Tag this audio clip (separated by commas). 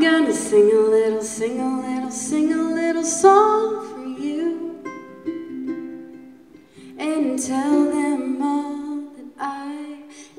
Singing, Ukulele, Musical instrument, Music